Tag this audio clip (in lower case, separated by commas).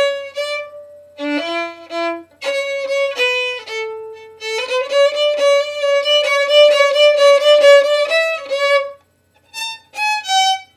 music, violin, musical instrument